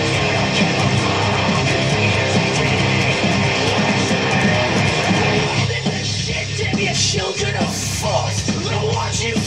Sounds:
Plucked string instrument, Guitar, Electric guitar, Music, Strum, Musical instrument

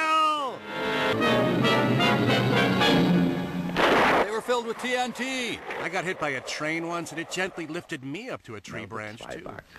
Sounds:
Music, Vehicle, Speech

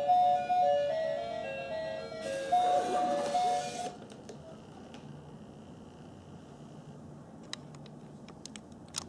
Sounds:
Theme music, Music

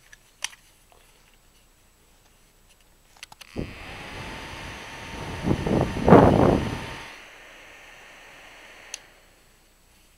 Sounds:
Mechanical fan

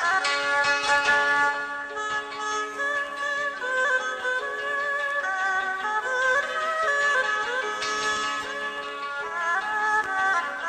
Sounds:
Music

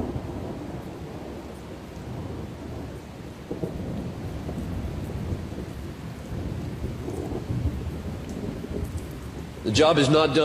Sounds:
Speech, Thunderstorm

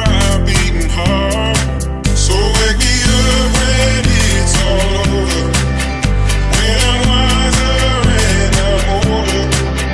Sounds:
Music

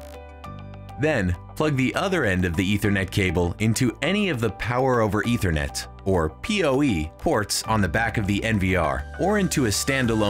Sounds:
Music, Speech

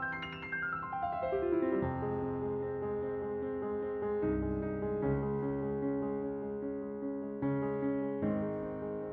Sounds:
Piano, Keyboard (musical), Musical instrument

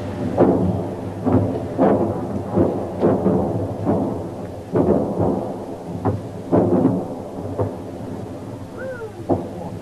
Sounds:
Speech, outside, rural or natural

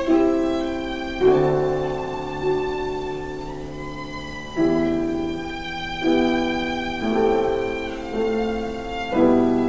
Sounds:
Musical instrument, Violin, Music

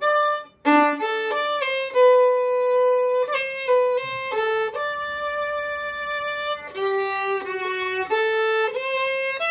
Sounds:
Music, fiddle, playing violin, Musical instrument

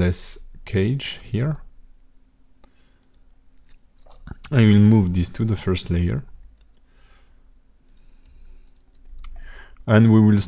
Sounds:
Speech

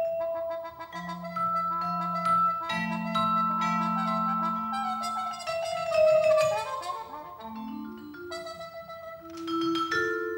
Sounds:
Percussion, Trumpet, Music, Musical instrument

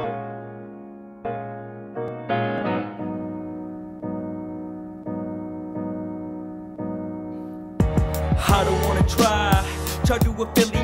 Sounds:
Music, Harp

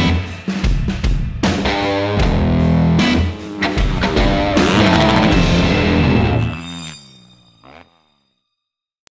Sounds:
Music

